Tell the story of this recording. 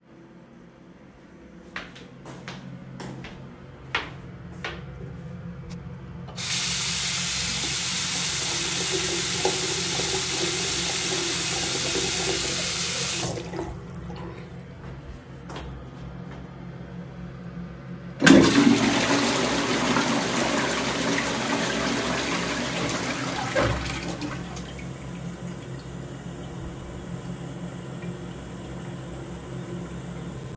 I started recording outside the bathroom and walked in, producing clearly audible footsteps on the tile floor. I then turned on the tap and let the water run for several seconds before turning it off. I then flushed the toilet and waited for it to finish.